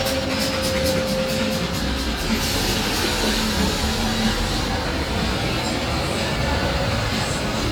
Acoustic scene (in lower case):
street